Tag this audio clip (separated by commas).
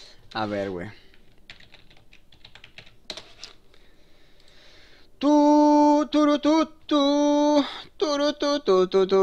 Computer keyboard, Typing